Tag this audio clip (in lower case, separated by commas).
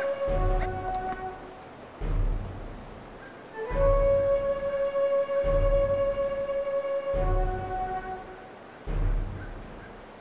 music